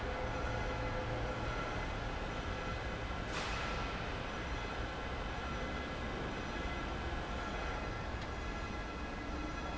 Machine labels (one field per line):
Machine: fan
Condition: abnormal